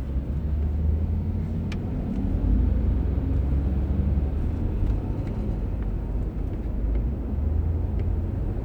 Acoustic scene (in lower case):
car